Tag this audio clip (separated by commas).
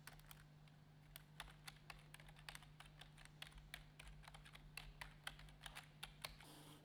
home sounds, Typing